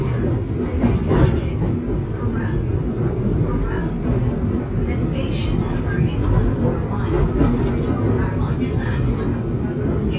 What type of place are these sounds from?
subway train